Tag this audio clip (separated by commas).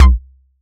Drum, Musical instrument, Bass drum, Music, Percussion